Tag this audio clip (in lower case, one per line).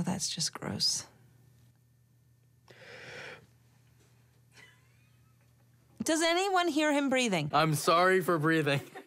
speech